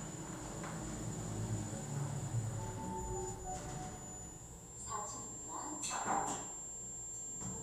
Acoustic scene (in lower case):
elevator